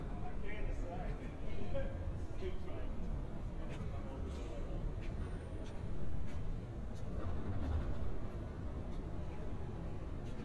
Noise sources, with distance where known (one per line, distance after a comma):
person or small group talking